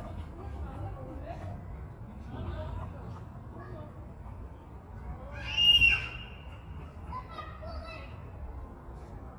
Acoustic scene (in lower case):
residential area